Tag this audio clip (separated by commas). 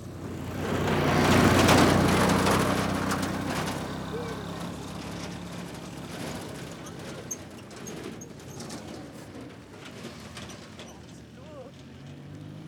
Vehicle, Motor vehicle (road)